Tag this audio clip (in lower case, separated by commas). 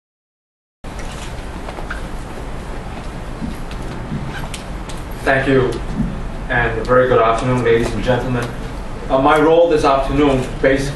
male speech, speech, narration